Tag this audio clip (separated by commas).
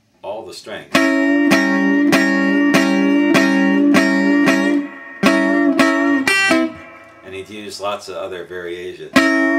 Music, Musical instrument, Plucked string instrument, Guitar, Acoustic guitar, Speech